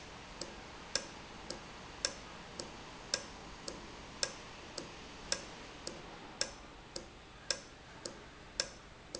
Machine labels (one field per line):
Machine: valve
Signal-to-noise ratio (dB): 6 dB